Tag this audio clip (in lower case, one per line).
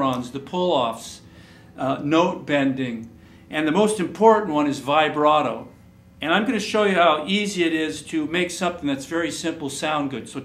speech